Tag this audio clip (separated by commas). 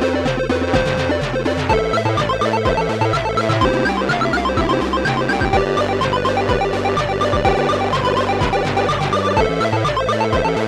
Music, Video game music